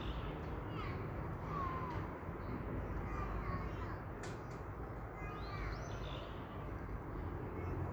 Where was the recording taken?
in a park